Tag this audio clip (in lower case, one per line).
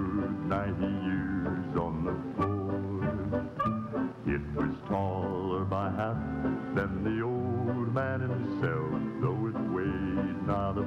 speech
music